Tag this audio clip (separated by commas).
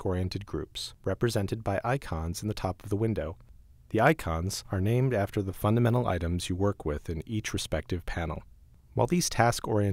Speech